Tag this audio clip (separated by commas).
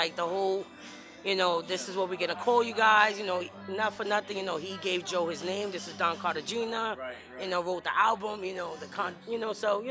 Speech, Music